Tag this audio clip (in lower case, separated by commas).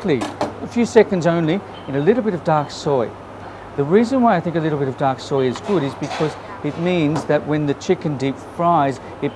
speech